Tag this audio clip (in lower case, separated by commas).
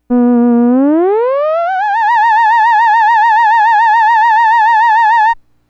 musical instrument, music